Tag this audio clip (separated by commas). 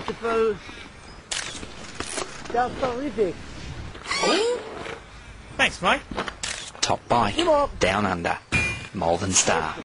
Speech